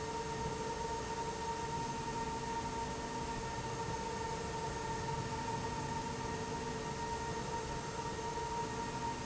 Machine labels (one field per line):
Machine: slide rail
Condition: normal